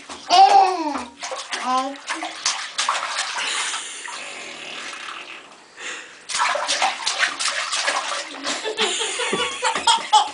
A baby babbles as water splashes followed by laughter